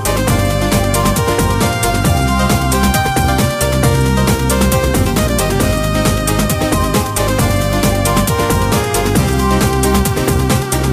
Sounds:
Music, Theme music

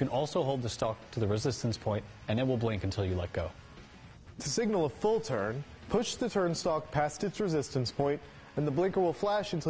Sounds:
Speech

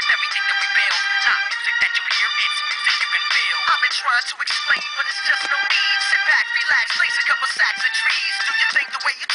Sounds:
Music

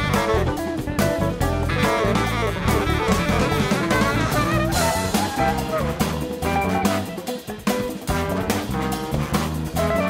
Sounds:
Jazz, Guitar, Music

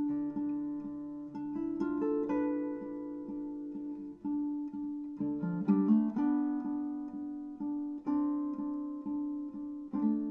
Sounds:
Plucked string instrument, Musical instrument, Guitar, Music

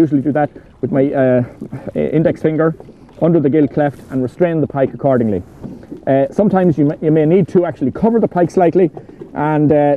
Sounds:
Speech

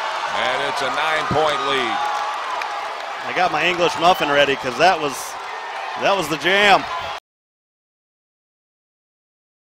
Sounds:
Speech

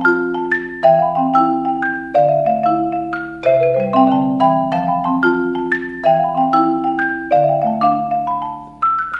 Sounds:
xylophone

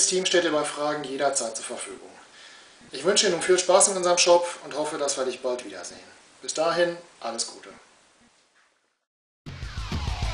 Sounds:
Music, Speech

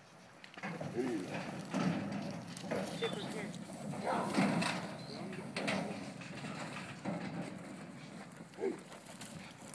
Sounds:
Speech

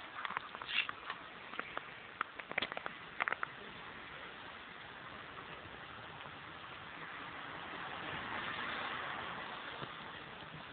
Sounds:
Vehicle, Crackle

